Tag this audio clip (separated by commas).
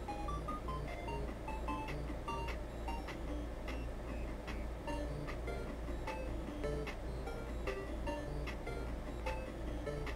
Music